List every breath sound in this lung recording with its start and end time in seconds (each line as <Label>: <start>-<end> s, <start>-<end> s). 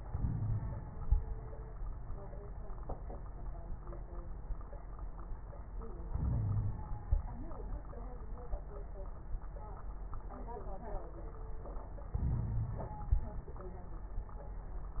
Inhalation: 0.00-1.09 s, 6.12-7.20 s, 12.13-13.49 s
Wheeze: 0.09-0.61 s, 6.16-6.77 s, 12.20-12.88 s